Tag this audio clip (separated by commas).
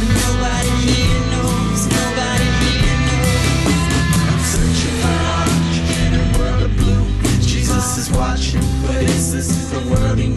Psychedelic rock, Music